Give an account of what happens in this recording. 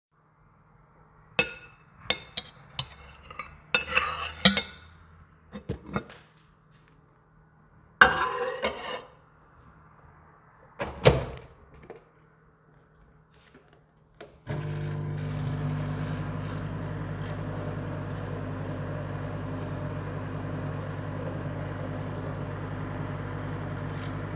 The device is placed stationary during the recording. Dish handling sounds are heard first, then a plate is placed into the microwave and the microwave door is closed. The microwave is started afterward, while faint street noise from outside the window is audible in the background.